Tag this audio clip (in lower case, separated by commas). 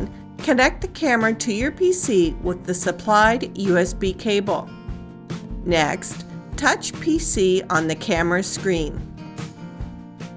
speech, music